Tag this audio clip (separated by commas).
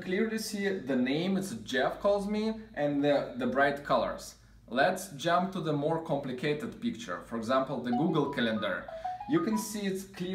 Speech